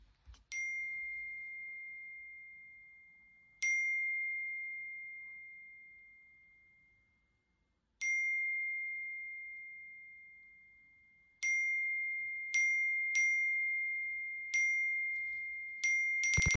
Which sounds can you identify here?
phone ringing